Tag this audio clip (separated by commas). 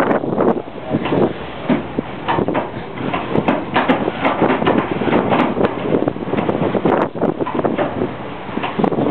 Wind noise (microphone), Wind